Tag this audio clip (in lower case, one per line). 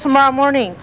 human voice